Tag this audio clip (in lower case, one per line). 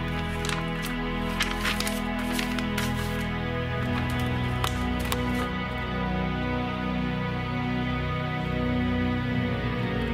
music